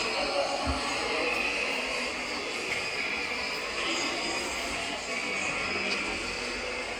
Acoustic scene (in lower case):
subway station